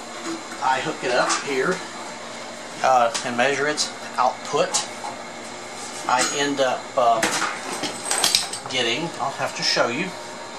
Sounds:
speech

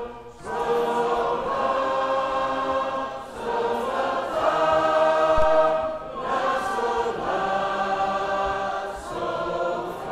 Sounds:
music

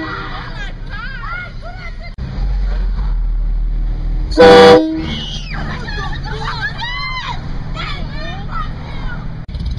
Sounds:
speech

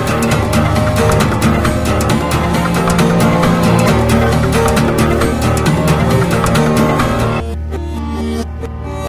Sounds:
music

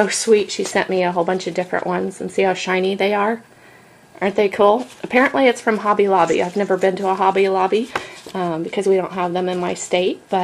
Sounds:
speech

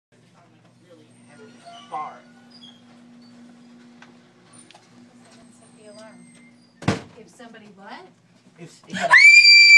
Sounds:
people screaming, speech, screaming

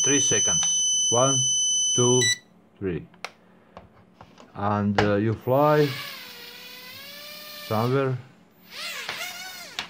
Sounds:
buzzer, speech

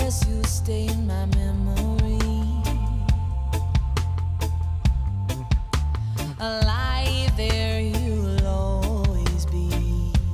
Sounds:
music

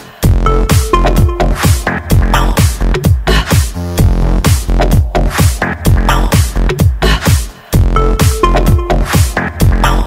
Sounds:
electronic music, techno, music

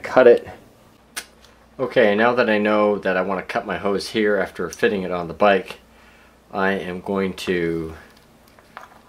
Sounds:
inside a small room, speech

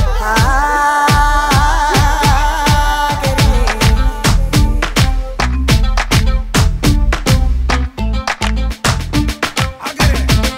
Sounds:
music

